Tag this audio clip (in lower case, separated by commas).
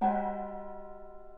gong, musical instrument, percussion, music